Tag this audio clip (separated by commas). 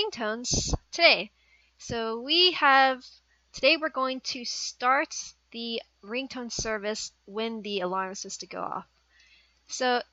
Speech